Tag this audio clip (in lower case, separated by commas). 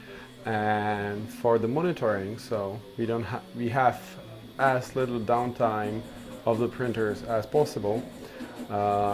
speech